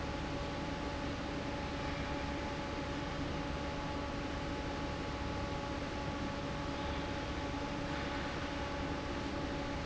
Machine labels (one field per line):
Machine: fan